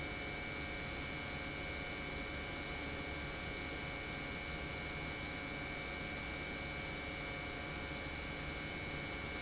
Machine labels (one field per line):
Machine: pump